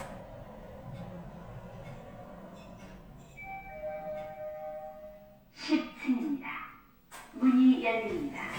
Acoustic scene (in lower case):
elevator